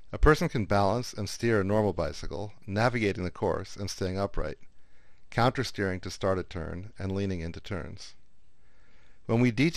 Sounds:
speech

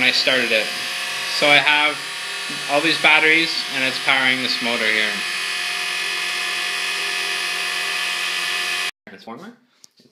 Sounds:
speech

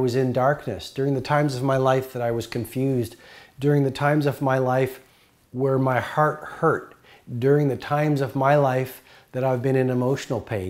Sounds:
speech

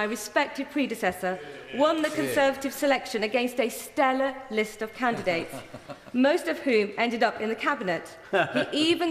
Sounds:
female speech
narration
speech

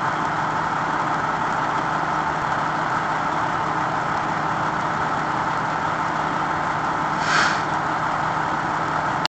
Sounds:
vehicle
heavy engine (low frequency)
engine

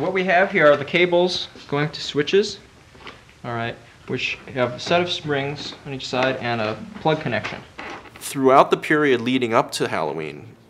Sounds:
speech
inside a small room

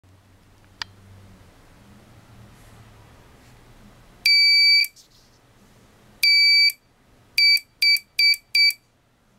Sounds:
inside a small room
buzzer

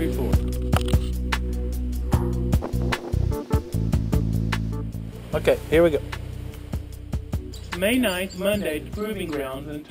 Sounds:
speech
music
bird
animal

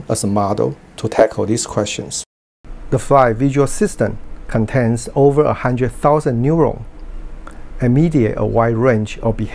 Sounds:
speech

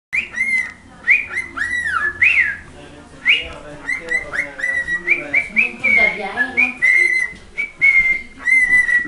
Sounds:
bird
speech

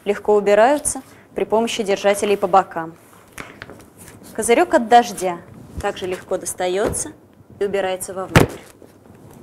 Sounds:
speech

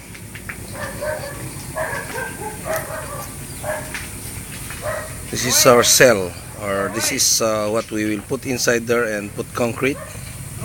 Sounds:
speech

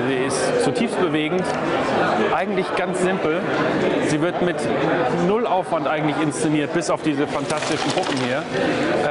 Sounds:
speech

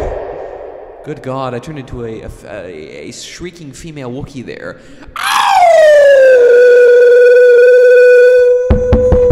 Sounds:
speech
music

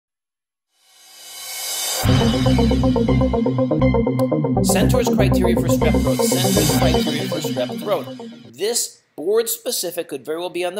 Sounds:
speech
music

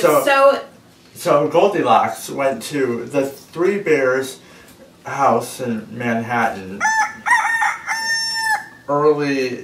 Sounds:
fowl
chicken
cock-a-doodle-doo

